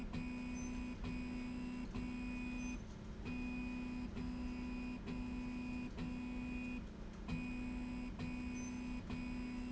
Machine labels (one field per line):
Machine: slide rail